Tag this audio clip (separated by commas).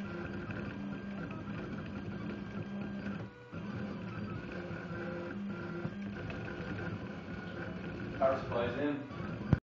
Speech, Printer